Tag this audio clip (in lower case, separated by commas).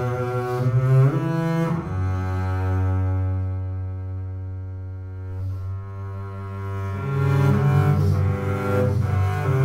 playing double bass, double bass, music